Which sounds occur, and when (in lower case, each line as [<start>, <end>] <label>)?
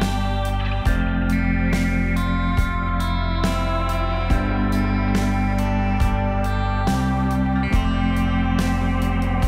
[0.00, 9.45] music